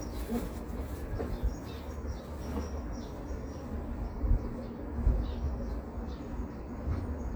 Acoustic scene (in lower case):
residential area